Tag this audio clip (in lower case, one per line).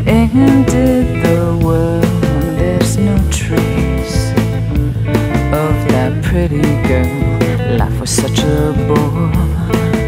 music